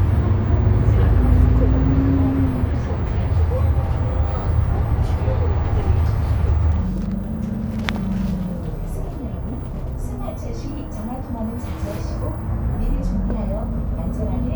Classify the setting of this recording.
bus